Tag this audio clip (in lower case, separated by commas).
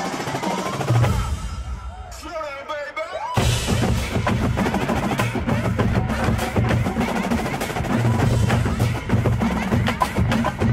music, percussion